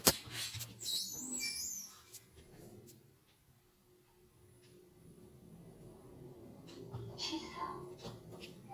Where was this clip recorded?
in an elevator